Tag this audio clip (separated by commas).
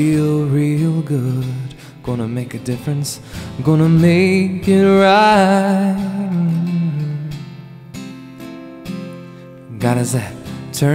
Musical instrument, Strum, Music, Plucked string instrument, Guitar